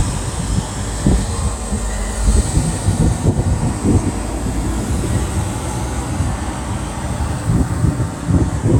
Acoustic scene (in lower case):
street